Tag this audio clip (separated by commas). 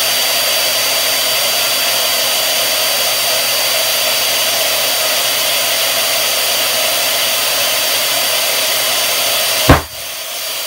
Burst